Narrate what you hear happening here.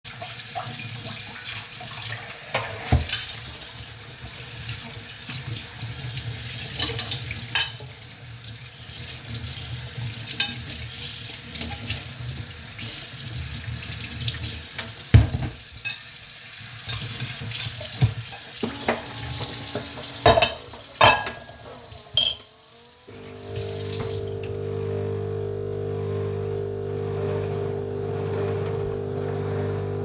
I wash the dishes and simultaneously turn on the coffee machine. It takes some time to activate and, therefore, can only be heard in the latter part of the recording.